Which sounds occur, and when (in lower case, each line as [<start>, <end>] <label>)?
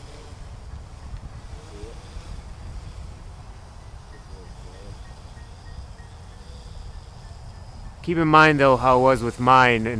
[0.01, 9.95] background noise
[1.51, 1.96] male speech
[4.04, 5.24] male speech
[4.07, 4.23] bell
[4.41, 4.50] bell
[4.70, 4.87] bell
[5.04, 5.17] bell
[5.32, 5.52] bell
[5.63, 5.80] bell
[5.92, 6.08] bell
[6.89, 6.99] bell
[7.22, 7.33] bell
[7.54, 7.63] bell
[7.83, 7.96] bell
[7.98, 9.95] male speech